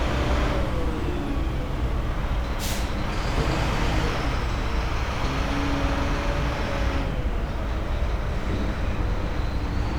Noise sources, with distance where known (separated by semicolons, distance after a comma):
large-sounding engine, near